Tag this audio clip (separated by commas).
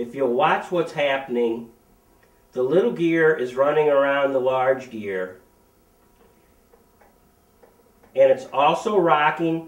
Speech